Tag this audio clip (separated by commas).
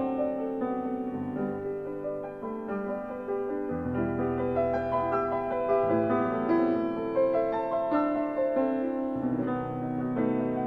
Music